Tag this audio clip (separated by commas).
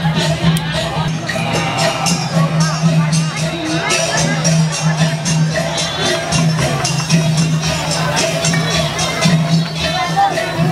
Wedding music, Music, Speech